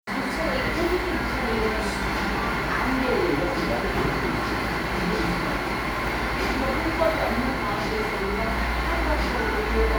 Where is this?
in a cafe